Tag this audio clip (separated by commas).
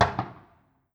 Explosion, Fireworks